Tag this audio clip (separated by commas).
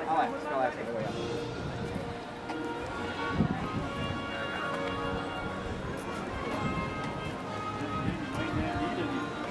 Speech, Music, Walk